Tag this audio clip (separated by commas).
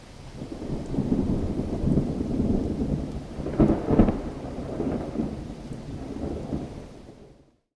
Water, Rain